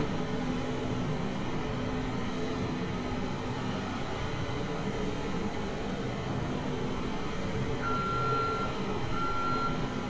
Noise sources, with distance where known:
reverse beeper, near

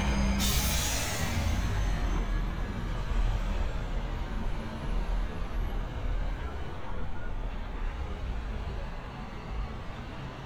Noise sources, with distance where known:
large-sounding engine, near

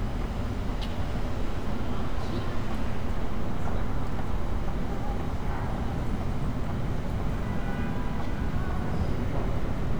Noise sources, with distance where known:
medium-sounding engine
car horn, far

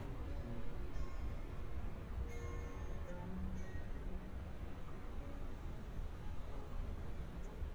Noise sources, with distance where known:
music from an unclear source, far

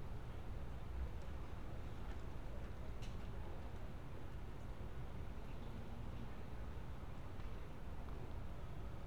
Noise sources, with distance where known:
background noise

